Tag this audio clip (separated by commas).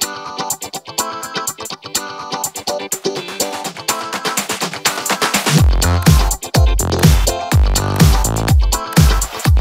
Music